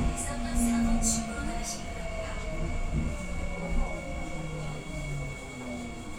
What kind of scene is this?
subway train